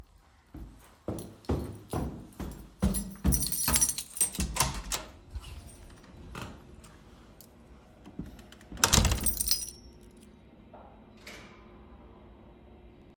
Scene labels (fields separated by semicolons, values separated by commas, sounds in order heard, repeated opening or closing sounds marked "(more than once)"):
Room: hallway; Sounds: footsteps, keys, door